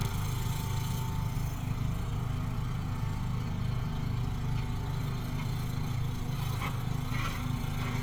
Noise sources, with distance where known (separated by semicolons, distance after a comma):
engine of unclear size